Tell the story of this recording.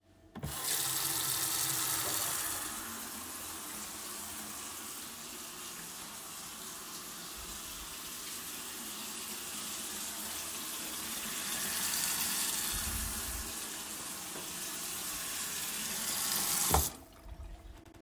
I walked around the kitchen while the water was running from the sink so that the sound of running water could be recorded.